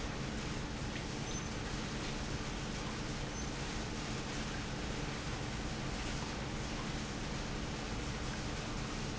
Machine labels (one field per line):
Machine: pump